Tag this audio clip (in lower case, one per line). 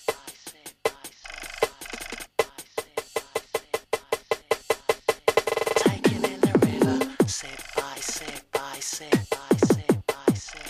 music